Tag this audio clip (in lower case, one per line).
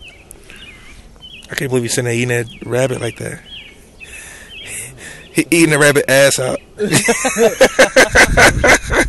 speech